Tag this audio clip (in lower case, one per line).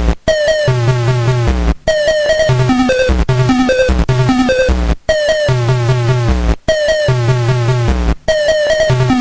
music